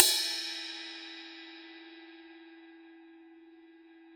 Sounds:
crash cymbal
music
percussion
musical instrument
cymbal

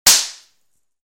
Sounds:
gunfire
explosion

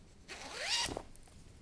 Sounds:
domestic sounds
zipper (clothing)

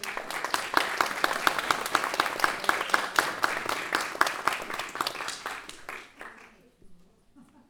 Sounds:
applause
human group actions

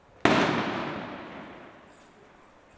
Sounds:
fireworks
explosion

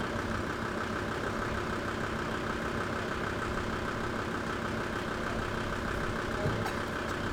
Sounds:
mechanisms
engine

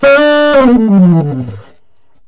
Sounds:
wind instrument
musical instrument
music

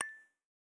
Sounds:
dishes, pots and pans
chink
glass
home sounds

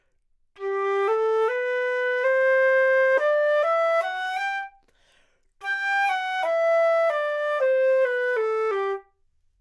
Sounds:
wind instrument
music
musical instrument

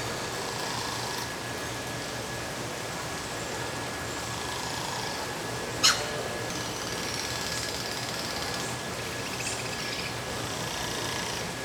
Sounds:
stream
water

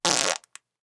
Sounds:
fart

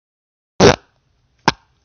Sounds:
fart

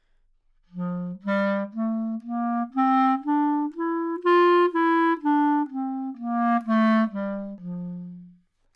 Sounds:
wind instrument
music
musical instrument

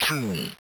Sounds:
speech synthesizer
speech
human voice

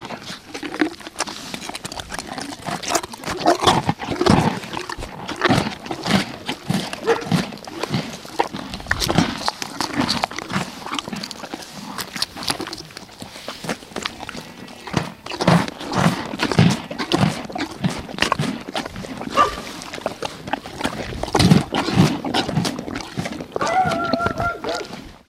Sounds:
animal
livestock

